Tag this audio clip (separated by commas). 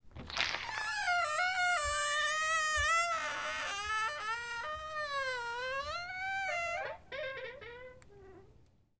Squeak